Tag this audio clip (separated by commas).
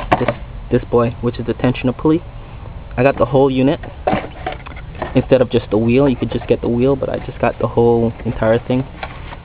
Speech